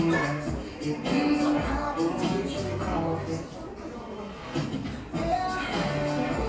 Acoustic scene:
crowded indoor space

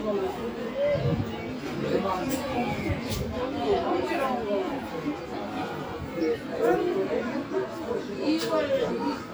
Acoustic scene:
park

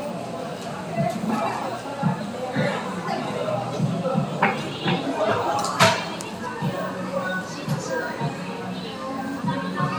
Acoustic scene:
cafe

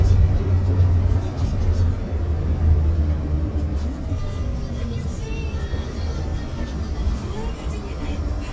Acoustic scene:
bus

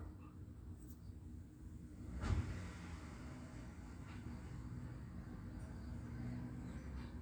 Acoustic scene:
residential area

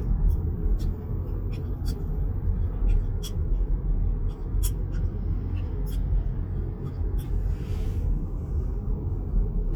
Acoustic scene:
car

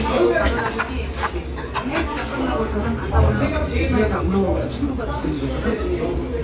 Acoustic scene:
restaurant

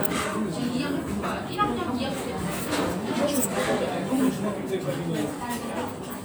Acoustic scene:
restaurant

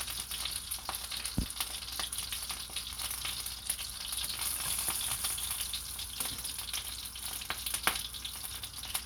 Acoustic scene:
kitchen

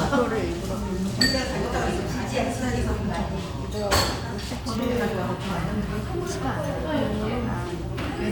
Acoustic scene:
restaurant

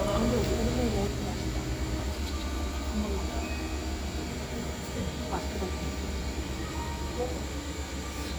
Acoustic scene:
cafe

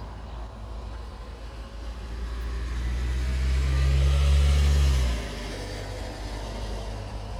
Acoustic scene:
residential area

